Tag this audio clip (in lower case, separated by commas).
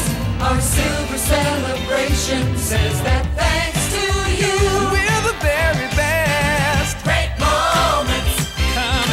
music, pop music